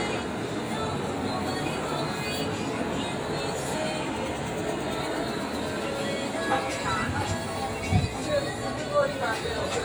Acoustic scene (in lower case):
street